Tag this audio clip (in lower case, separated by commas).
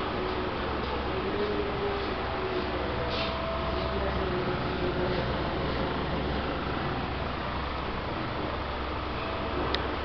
wind noise (microphone)